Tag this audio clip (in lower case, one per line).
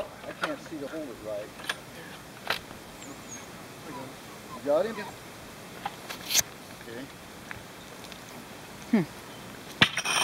speech